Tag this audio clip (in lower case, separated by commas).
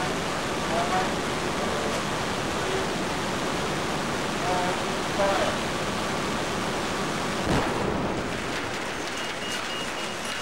speech, engine, jet engine